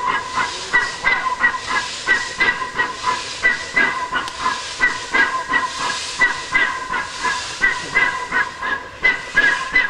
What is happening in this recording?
Rhythmic bursts of steam whistling and rhythmic hisses are occurring, and faint speech is present in the background